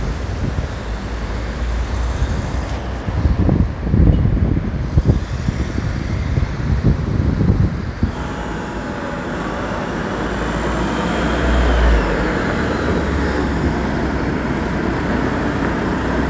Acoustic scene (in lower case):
residential area